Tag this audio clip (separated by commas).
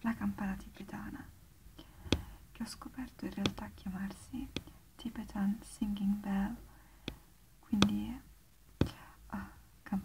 Speech